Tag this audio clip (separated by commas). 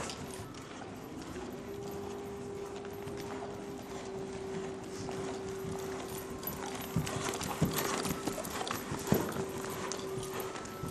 Clip-clop, horse clip-clop, Animal